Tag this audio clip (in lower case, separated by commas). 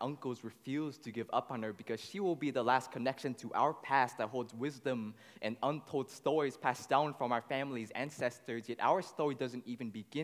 speech